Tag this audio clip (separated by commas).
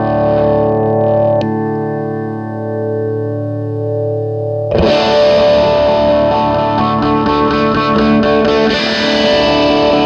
Guitar, Music